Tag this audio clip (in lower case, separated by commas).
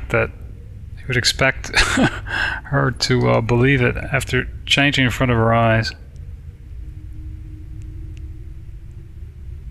speech